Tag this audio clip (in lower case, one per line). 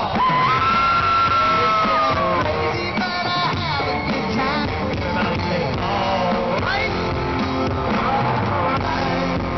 male singing
music